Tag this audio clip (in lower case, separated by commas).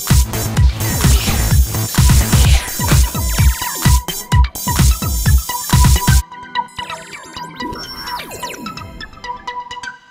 music, house music, synthesizer, musical instrument